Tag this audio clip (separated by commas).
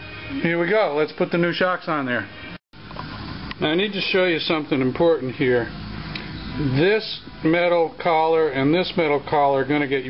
Speech, Music, inside a large room or hall